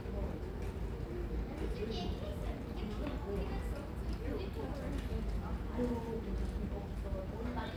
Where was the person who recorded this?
in a residential area